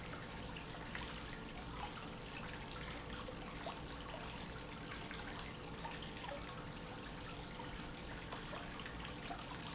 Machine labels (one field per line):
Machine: pump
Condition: normal